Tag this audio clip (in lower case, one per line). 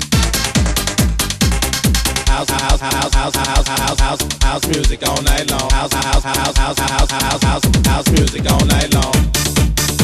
music
dance music